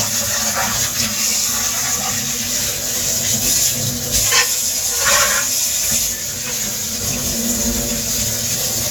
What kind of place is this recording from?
kitchen